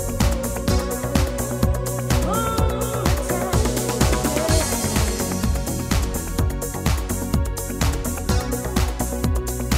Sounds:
dance music, music

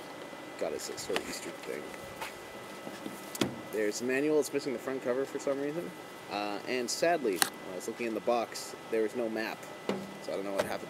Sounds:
outside, urban or man-made, speech

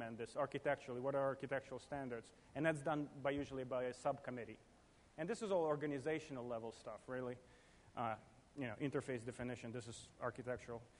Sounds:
speech, male speech

